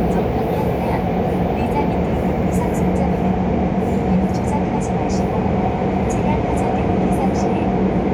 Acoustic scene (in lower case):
subway train